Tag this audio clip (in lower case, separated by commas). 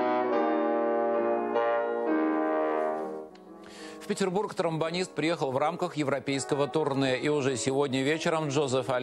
speech, music, trombone